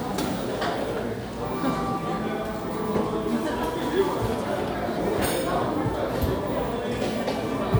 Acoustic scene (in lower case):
cafe